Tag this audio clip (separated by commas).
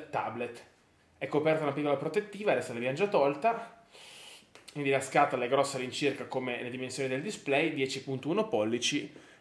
Speech